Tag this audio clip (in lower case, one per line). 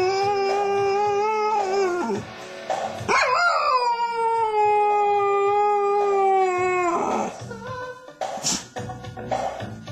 howl
inside a small room
domestic animals
music
dog
animal